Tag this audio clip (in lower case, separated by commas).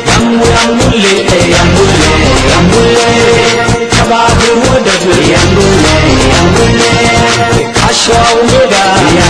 music